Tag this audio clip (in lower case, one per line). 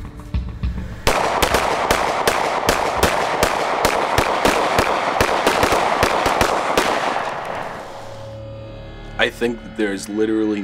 speech
music
outside, rural or natural